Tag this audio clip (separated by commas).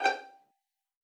Bowed string instrument, Musical instrument, Music